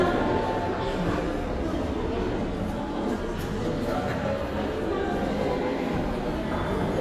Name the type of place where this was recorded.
crowded indoor space